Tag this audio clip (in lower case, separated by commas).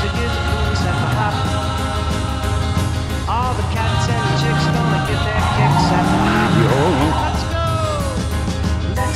music, vehicle, skidding, car